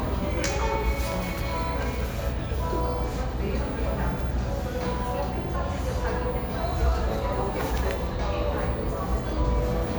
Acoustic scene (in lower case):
cafe